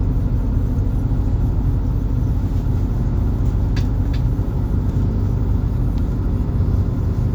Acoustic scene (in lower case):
bus